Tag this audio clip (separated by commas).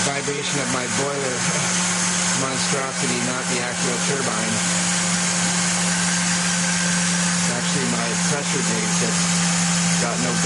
Steam, Hiss